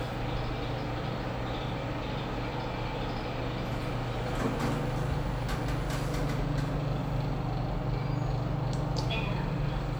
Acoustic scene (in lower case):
elevator